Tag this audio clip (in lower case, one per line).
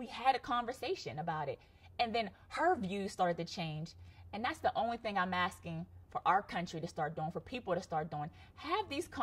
woman speaking
speech